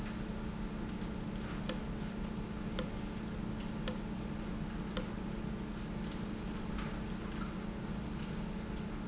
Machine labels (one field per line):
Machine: valve